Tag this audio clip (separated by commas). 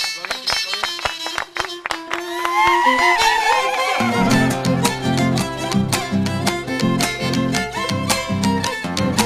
Violin, Bowed string instrument